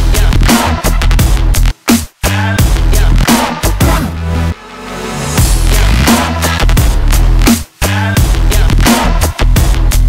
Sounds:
music
drum and bass

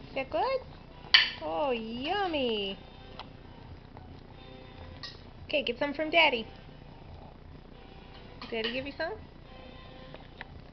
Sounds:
speech

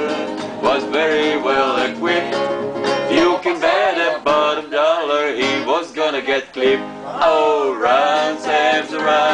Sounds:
music

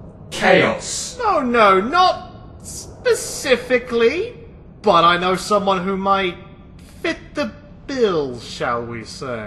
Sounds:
speech

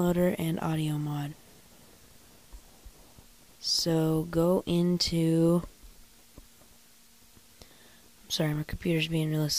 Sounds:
speech

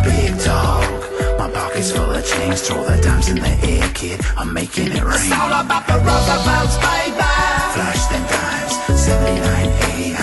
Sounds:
music

